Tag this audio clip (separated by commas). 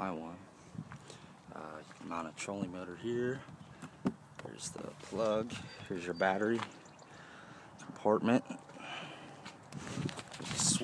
Speech